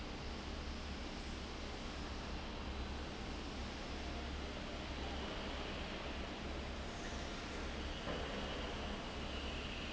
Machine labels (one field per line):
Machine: fan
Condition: abnormal